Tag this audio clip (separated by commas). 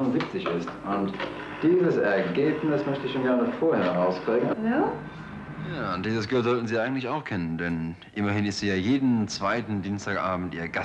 Speech